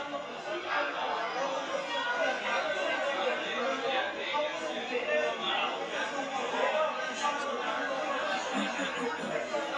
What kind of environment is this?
restaurant